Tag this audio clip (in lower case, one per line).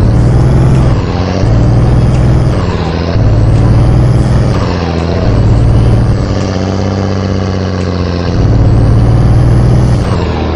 vehicle